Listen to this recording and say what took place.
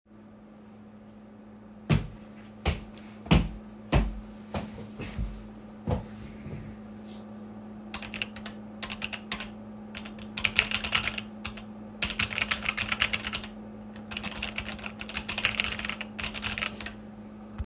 I walked up to my pc and sat down. I then used my keyboard.